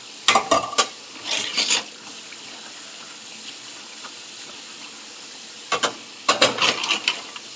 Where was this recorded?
in a kitchen